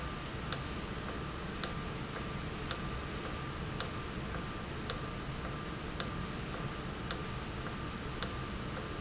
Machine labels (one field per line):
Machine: valve